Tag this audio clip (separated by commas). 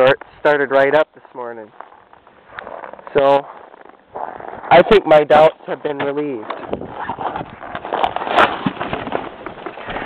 Speech